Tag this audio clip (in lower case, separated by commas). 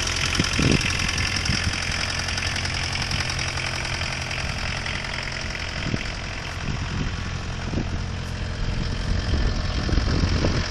vehicle, engine, car